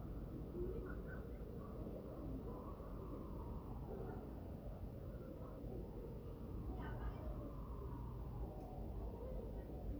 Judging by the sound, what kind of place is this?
residential area